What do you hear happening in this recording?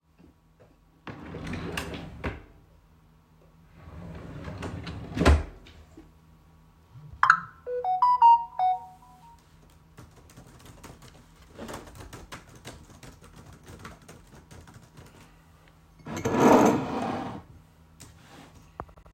I picked my phone out of my table drawer, I recieved a notification on my phone, I began to type on my laptop. Afterwards I adjusted the position of my coffee mug on the table